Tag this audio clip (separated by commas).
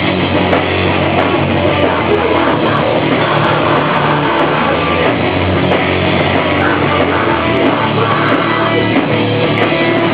Rock music, Music